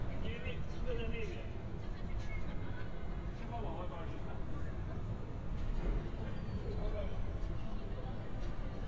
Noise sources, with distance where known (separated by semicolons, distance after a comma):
background noise